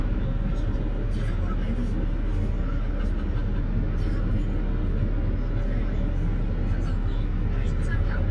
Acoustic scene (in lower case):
car